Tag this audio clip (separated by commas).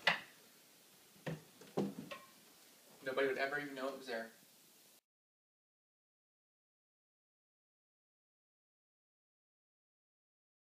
Speech